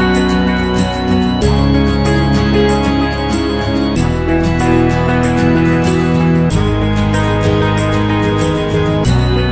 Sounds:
inside a small room
background music
music

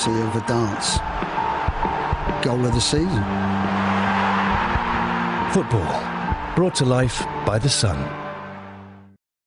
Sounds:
music
speech

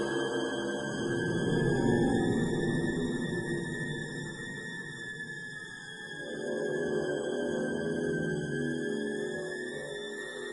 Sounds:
music
soundtrack music

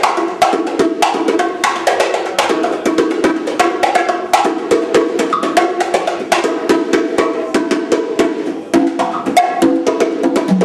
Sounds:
music
drum kit
musical instrument
wood block
drum

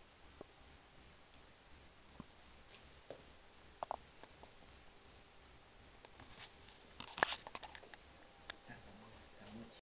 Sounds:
speech

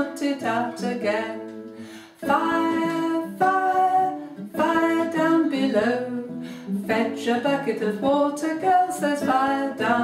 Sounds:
music
female singing

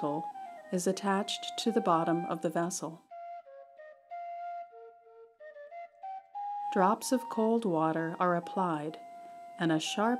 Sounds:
flute
music
speech

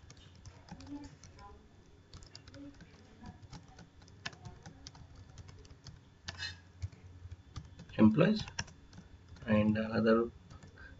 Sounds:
speech

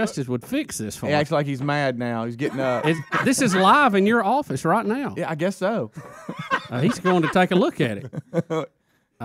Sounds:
speech

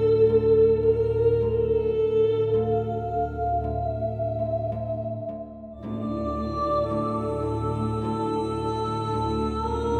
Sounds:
music

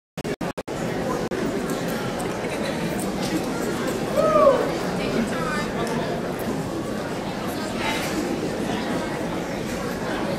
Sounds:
female speech
speech

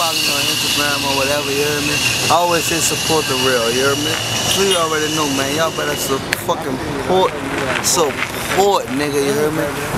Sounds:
speech

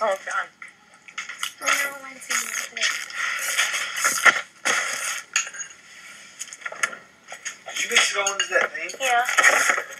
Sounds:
inside a large room or hall
speech

